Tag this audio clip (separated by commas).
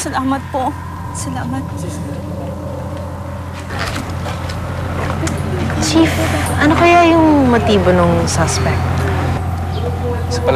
Speech